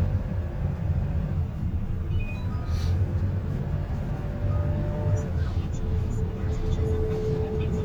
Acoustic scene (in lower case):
car